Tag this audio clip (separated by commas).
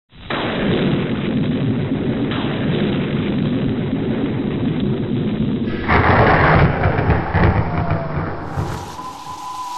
Explosion, Burst